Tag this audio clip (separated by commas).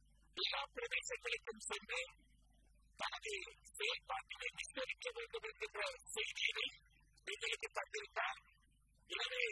Speech, monologue, Male speech